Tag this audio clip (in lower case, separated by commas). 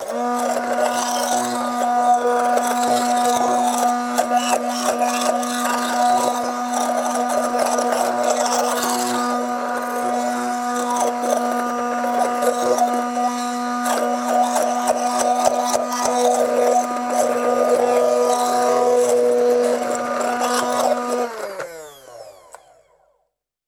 domestic sounds